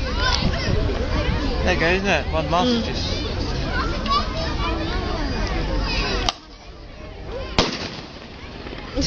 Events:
[0.00, 0.32] shout
[0.00, 9.05] boat
[0.00, 9.05] speech babble
[0.29, 1.48] wind noise (microphone)
[1.51, 2.17] male speech
[2.25, 3.20] male speech
[7.47, 7.99] gunfire
[8.85, 9.05] laughter

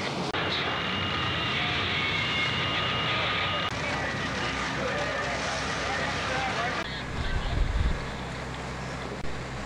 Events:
[0.00, 9.65] fire
[0.00, 9.65] mechanisms
[0.45, 0.60] generic impact sounds
[4.71, 5.36] human voice
[5.78, 6.84] human voice
[8.50, 8.57] tick

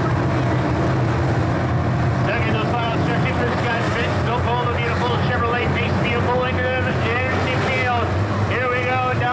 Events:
[0.00, 9.32] crowd
[0.00, 9.32] auto racing
[2.25, 8.07] male speech
[8.53, 9.32] male speech

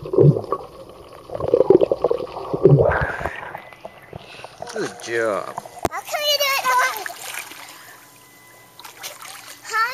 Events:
[0.00, 2.75] gurgling
[0.00, 9.93] water
[2.75, 3.48] breathing
[3.52, 5.84] brief tone
[4.08, 4.54] breathing
[4.53, 5.08] splatter
[4.55, 9.93] conversation
[4.57, 5.54] man speaking
[5.41, 5.59] generic impact sounds
[5.81, 5.91] generic impact sounds
[5.84, 7.14] kid speaking
[6.44, 7.83] splatter
[7.58, 8.02] breathing
[7.61, 9.59] brief tone
[8.73, 9.54] splatter
[9.25, 9.58] breathing
[9.62, 9.93] kid speaking

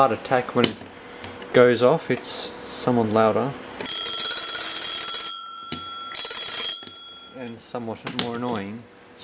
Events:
[0.00, 9.23] background noise
[0.57, 0.71] tick
[5.63, 5.81] clicking
[6.06, 6.87] alarm clock
[7.98, 8.23] thump

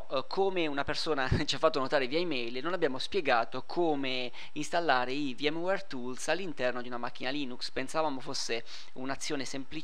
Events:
[0.00, 4.28] man speaking
[0.00, 9.83] mechanisms
[1.30, 1.44] wind noise (microphone)
[4.28, 4.46] breathing
[4.51, 8.61] man speaking
[8.61, 8.87] breathing
[8.90, 9.83] man speaking

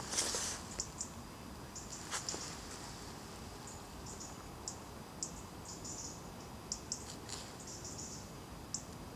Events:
[0.00, 1.07] insect
[0.00, 9.15] mechanisms
[1.71, 2.73] insect
[3.65, 3.80] insect
[4.01, 4.31] insect
[4.62, 4.79] insect
[5.18, 5.52] insect
[5.62, 6.25] insect
[6.36, 6.47] insect
[6.69, 8.25] insect
[8.71, 8.82] insect
[8.87, 8.94] tick

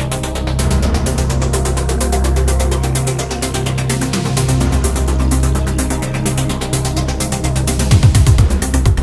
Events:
[0.00, 9.02] music

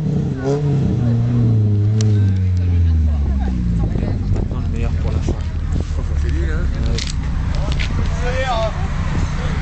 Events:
[0.00, 9.61] car
[0.00, 9.61] environmental noise
[0.29, 0.59] revving
[0.99, 1.25] woman speaking
[3.76, 9.61] male speech
[8.02, 8.15] generic impact sounds
[9.00, 9.61] wind noise (microphone)

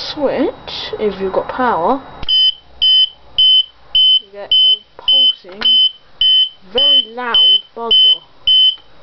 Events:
[0.00, 2.04] woman speaking
[0.00, 9.02] mechanisms
[1.46, 1.48] generic impact sounds
[2.18, 2.27] clicking
[2.25, 2.52] beep
[2.80, 3.08] beep
[3.35, 3.65] beep
[3.90, 4.20] beep
[4.16, 4.49] woman speaking
[4.51, 4.80] beep
[4.59, 4.75] woman speaking
[4.93, 5.72] woman speaking
[5.04, 5.32] beep
[5.45, 5.61] generic impact sounds
[5.58, 5.90] beep
[6.19, 6.50] beep
[6.56, 7.60] woman speaking
[6.75, 7.08] beep
[7.31, 7.62] beep
[7.73, 8.16] woman speaking
[7.87, 8.19] beep
[8.43, 8.76] beep
[8.72, 8.81] generic impact sounds

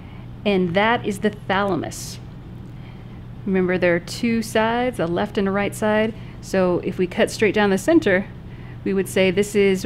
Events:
[0.00, 9.85] mechanisms
[0.42, 2.17] woman speaking
[2.77, 3.27] breathing
[3.45, 6.07] woman speaking
[6.07, 6.42] breathing
[6.38, 8.24] woman speaking
[8.42, 8.86] breathing
[8.81, 9.85] woman speaking

